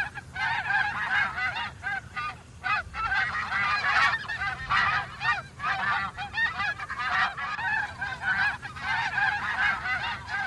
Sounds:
goose honking

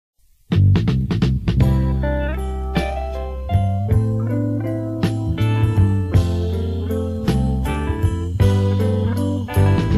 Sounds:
music

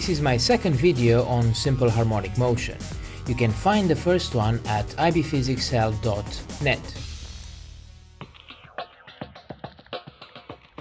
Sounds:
speech
music

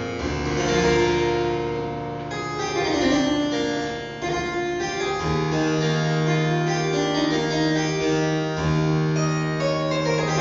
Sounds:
music
harpsichord

